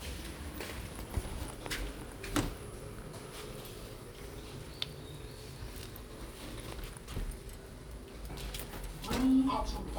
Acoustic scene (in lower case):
elevator